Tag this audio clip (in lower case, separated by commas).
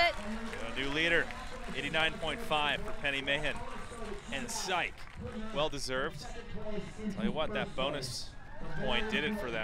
speech